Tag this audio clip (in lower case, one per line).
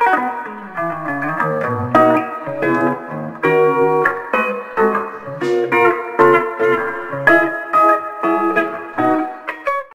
strum
guitar
electric guitar
plucked string instrument
music
musical instrument